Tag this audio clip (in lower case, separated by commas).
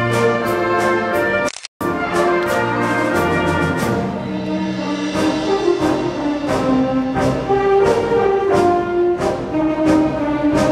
music, orchestra